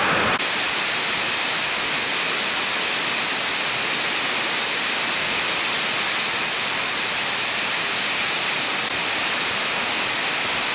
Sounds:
hail

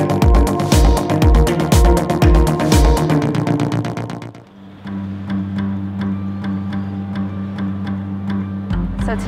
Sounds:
music, speech

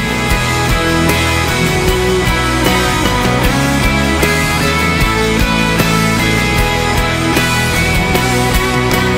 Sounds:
grunge, music

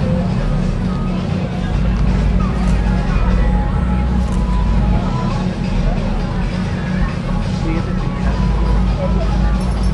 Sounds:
speech, music

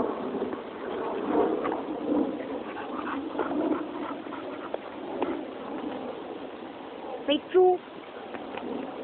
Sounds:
speech, dog, animal, domestic animals

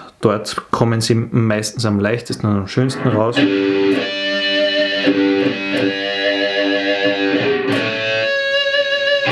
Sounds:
tapping guitar

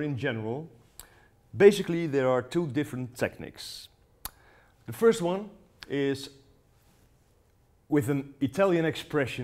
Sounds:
speech

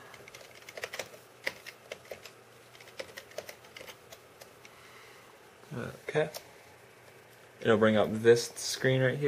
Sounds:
speech

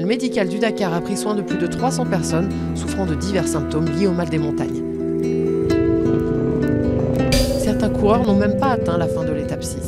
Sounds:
music, speech

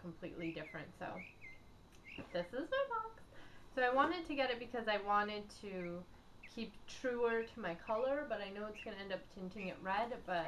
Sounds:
bird, bird vocalization

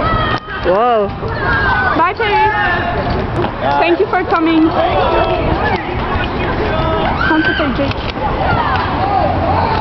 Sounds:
speech

